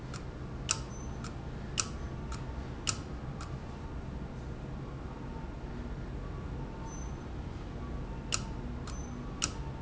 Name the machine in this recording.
valve